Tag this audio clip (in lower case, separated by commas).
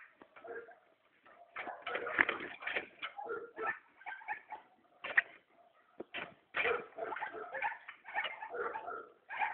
animal